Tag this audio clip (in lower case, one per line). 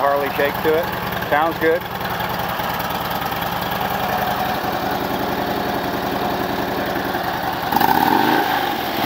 outside, urban or man-made
speech
vehicle
motorcycle